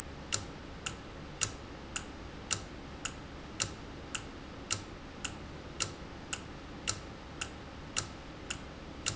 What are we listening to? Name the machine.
valve